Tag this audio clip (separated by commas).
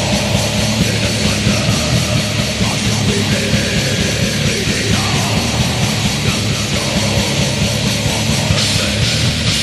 Music